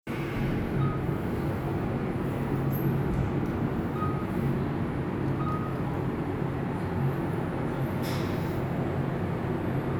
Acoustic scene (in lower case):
elevator